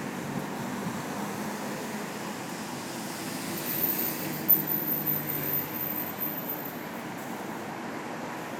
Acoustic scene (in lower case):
street